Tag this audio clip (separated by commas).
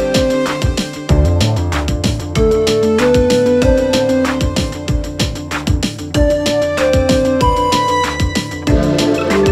electric grinder grinding